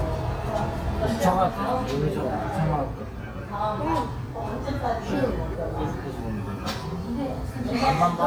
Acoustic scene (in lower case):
restaurant